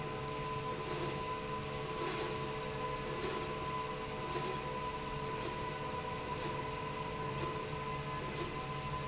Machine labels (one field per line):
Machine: slide rail